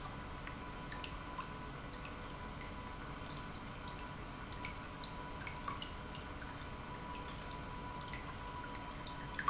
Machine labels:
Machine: pump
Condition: normal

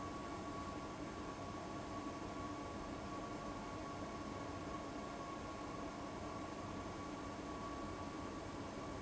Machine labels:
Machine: fan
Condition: abnormal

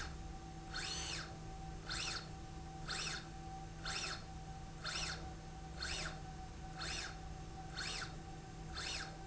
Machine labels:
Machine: slide rail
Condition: normal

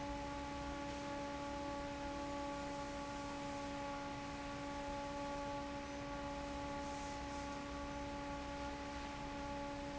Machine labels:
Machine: fan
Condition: normal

